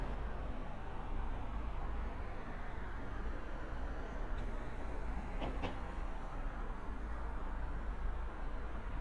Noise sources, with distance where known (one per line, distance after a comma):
non-machinery impact, near